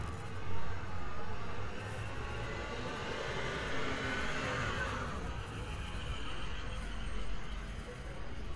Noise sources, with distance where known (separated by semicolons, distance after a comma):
large-sounding engine, near